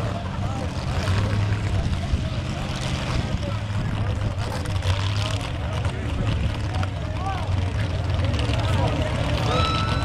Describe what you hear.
A large motor vehicle engine is operating, people are talking in the background, and then metal squeaking occurs